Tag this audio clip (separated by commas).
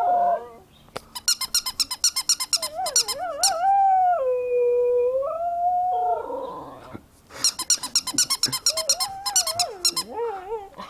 Domestic animals, Animal, Dog